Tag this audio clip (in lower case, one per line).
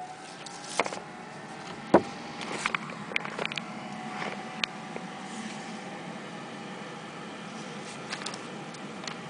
hum
mains hum